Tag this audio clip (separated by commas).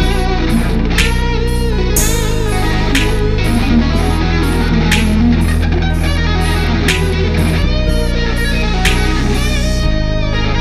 Musical instrument, Bass guitar, Music, Plucked string instrument